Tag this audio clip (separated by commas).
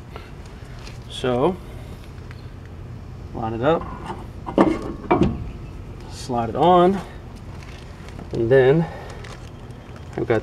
Speech